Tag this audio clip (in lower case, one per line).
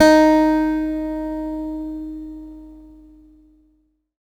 guitar
music
musical instrument
acoustic guitar
plucked string instrument